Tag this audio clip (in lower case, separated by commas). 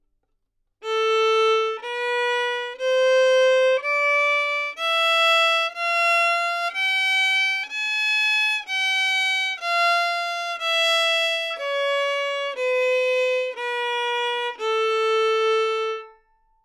musical instrument, bowed string instrument, music